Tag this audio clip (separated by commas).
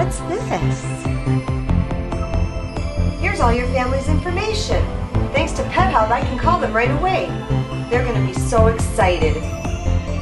Speech, Music